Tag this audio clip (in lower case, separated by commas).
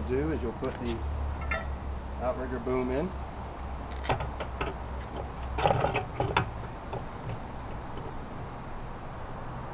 speech